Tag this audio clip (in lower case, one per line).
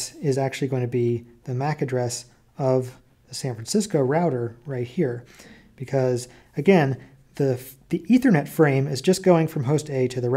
speech